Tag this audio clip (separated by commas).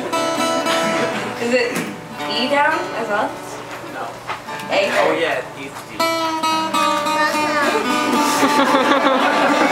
Musical instrument, Acoustic guitar, Guitar, Strum, Speech, Plucked string instrument, Music